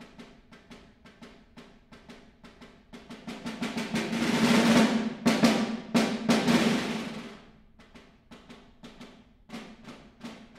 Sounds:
drum, drum roll, music, musical instrument, percussion

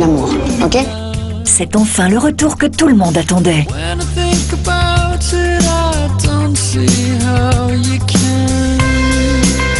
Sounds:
music, speech

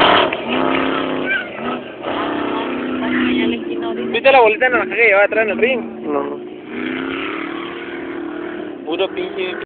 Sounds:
speech, car, vehicle

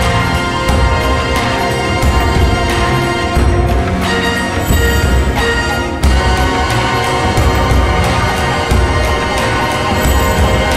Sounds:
theme music, soundtrack music, music

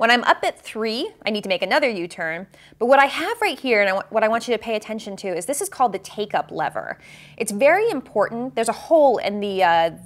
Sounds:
speech

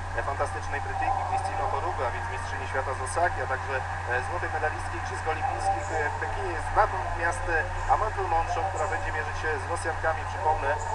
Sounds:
speech, outside, urban or man-made

